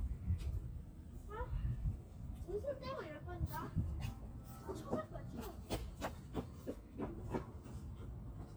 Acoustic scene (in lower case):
park